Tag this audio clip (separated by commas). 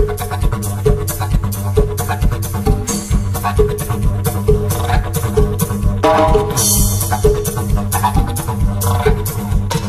Music